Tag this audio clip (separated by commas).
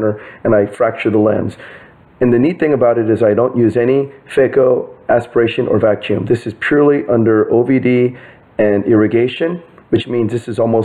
Speech